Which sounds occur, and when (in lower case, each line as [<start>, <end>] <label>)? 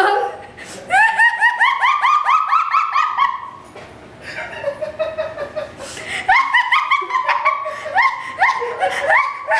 [0.00, 0.54] human sounds
[0.00, 9.55] mechanisms
[0.52, 0.83] breathing
[0.86, 3.72] laughter
[3.72, 3.98] generic impact sounds
[4.19, 4.40] breathing
[4.19, 5.77] laughter
[5.35, 5.52] generic impact sounds
[5.75, 6.29] breathing
[6.25, 9.55] laughter
[7.64, 7.96] breathing